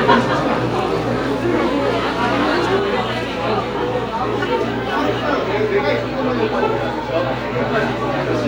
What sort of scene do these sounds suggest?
crowded indoor space